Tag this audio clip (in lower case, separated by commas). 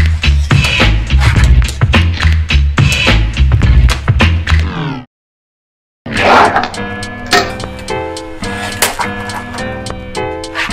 music